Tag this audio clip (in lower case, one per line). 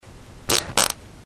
fart